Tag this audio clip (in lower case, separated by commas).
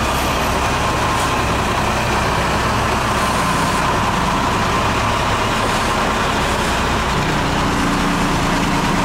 truck, vehicle, air brake